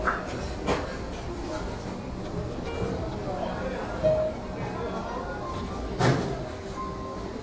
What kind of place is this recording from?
restaurant